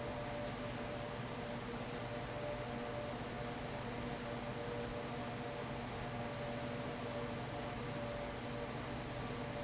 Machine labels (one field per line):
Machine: fan